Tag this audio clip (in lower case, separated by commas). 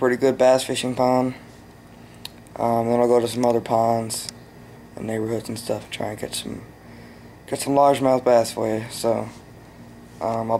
speech